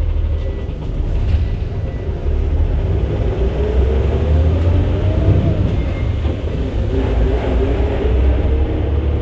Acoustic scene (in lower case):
bus